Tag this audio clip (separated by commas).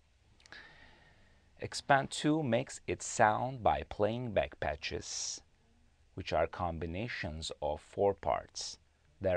Speech